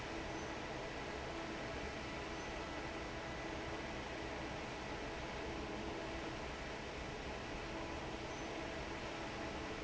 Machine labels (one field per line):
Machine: fan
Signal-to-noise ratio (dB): 6 dB